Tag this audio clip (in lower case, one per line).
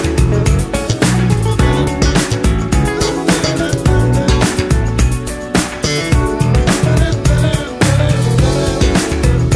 guitar
bass guitar
music
plucked string instrument
musical instrument